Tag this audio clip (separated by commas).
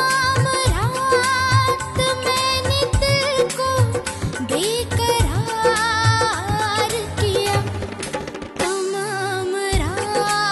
Music